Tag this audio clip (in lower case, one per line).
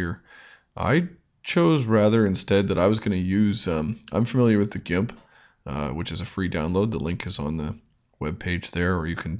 speech